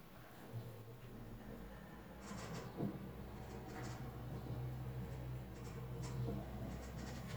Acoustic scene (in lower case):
elevator